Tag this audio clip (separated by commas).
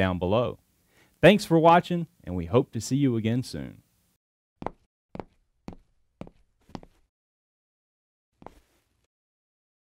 Speech